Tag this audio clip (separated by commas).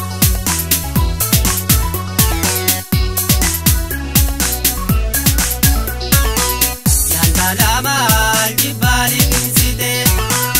Music